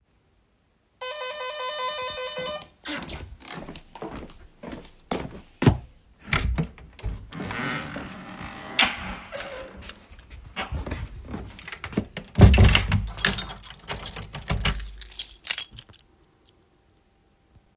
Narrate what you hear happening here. After the doorbell was ringing I walked to the door and opened it. The person that rang the bell came in, closed the door and put away their keys.